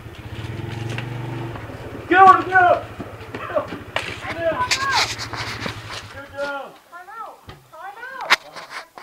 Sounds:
Vehicle, Speech, outside, rural or natural

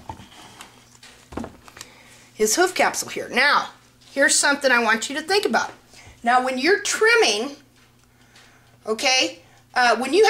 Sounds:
Speech

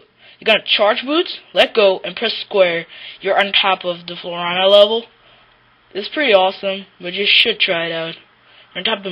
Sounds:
Speech

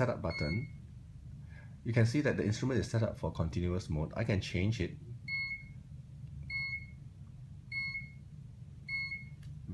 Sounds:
Beep, Speech

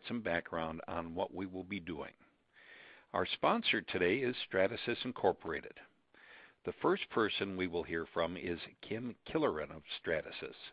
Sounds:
Speech

